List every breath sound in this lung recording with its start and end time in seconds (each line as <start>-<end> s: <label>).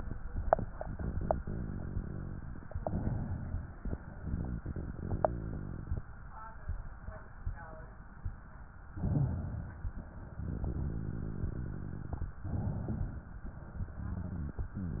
0.76-2.68 s: rhonchi
2.73-3.81 s: inhalation
4.13-6.05 s: rhonchi
8.97-9.83 s: inhalation
10.41-12.33 s: rhonchi
12.49-13.36 s: inhalation